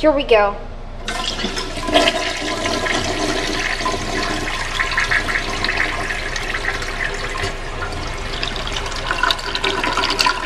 An adult female speaks and water runs and gurgles